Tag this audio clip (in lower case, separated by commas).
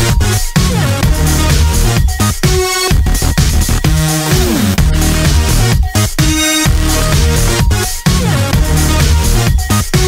music